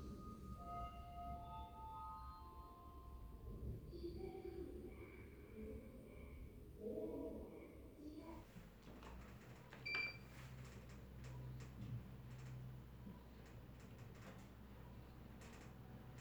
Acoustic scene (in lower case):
elevator